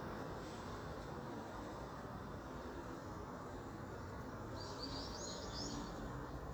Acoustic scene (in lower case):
park